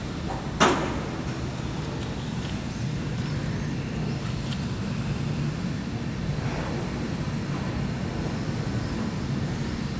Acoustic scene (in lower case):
residential area